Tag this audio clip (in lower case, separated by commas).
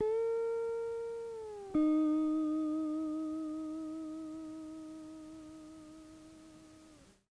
plucked string instrument, musical instrument, music, guitar